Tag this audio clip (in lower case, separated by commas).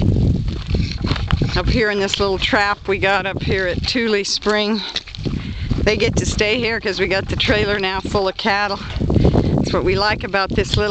speech